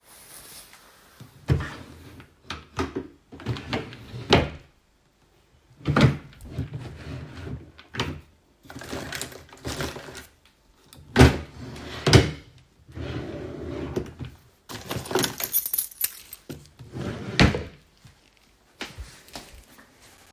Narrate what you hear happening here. I open a drawer in my wardrobe and search for my keys. I find the keychain and close the drawer again.